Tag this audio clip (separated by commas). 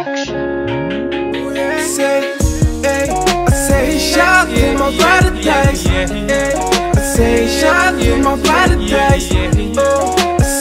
Music